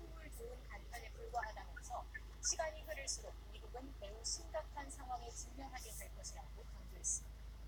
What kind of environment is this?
car